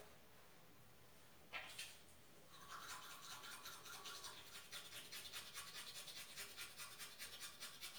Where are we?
in a restroom